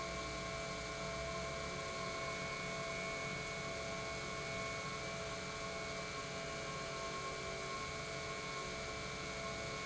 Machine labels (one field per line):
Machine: pump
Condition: normal